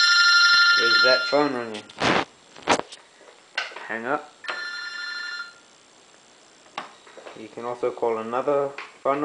A telephone rings and then a man speaks